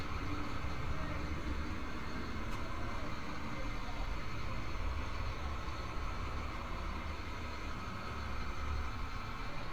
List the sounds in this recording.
engine of unclear size